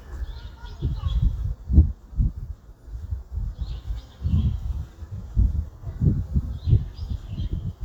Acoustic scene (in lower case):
park